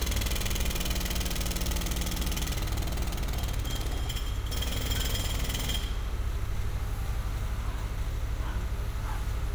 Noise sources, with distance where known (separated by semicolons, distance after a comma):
jackhammer, near; dog barking or whining, far